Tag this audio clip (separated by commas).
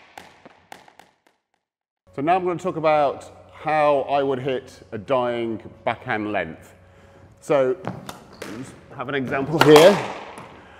playing squash